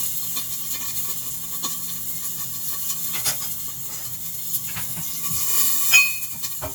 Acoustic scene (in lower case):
kitchen